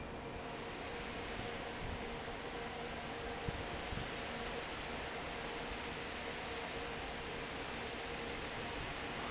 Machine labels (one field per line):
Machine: fan